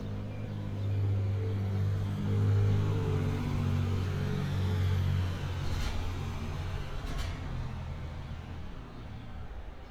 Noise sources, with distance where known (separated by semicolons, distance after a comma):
engine of unclear size, near